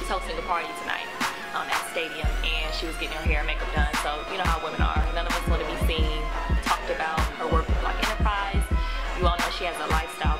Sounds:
Speech, Music

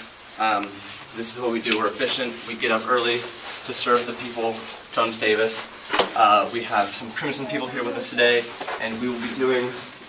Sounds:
Speech

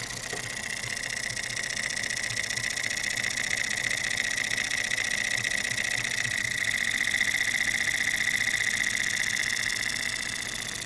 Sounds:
Engine

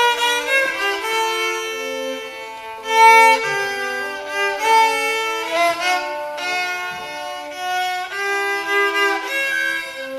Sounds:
Violin, Musical instrument, Music

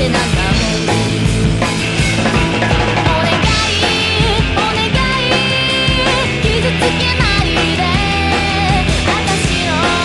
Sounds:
Music

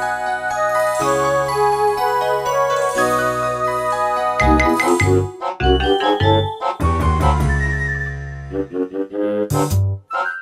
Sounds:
Music

